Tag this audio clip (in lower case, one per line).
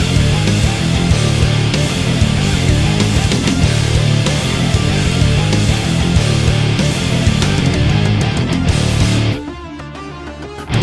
music